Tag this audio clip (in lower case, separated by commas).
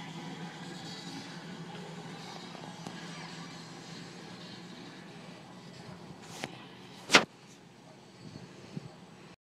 vehicle